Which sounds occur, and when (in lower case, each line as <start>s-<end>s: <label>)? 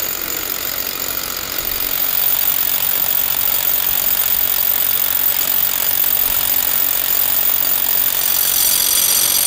0.0s-9.4s: drill